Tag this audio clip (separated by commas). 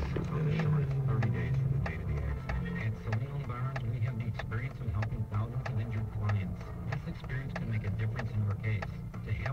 Speech, Vehicle